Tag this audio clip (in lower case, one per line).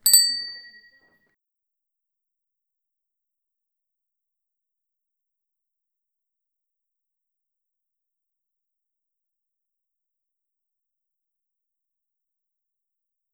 bicycle bell
alarm
bicycle
vehicle
bell